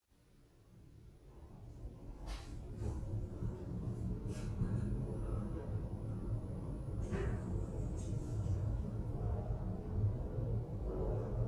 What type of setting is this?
elevator